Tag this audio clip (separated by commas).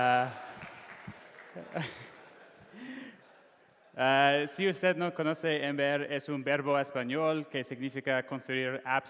Speech